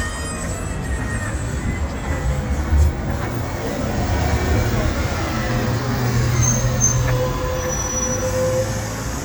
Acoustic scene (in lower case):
street